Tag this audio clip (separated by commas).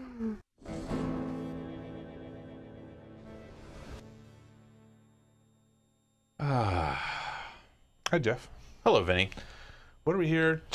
Music, Speech